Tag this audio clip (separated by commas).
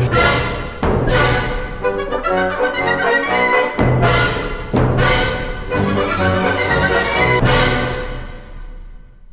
Music, Brass instrument